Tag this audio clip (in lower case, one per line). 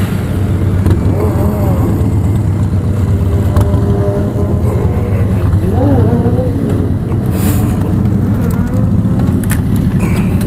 driving motorcycle